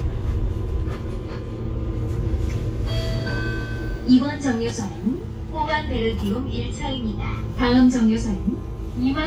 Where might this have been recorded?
on a bus